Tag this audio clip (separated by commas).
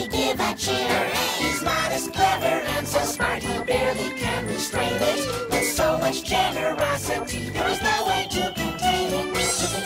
Music, inside a large room or hall